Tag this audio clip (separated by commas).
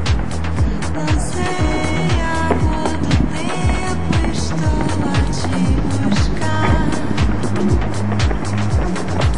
Music